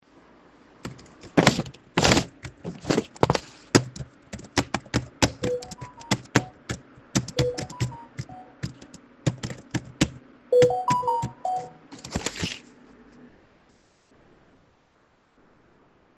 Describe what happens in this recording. I was typing on my keyboard. During that, I got notifications on my phone.